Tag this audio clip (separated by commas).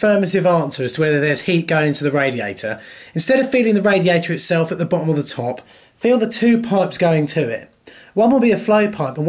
Speech, inside a small room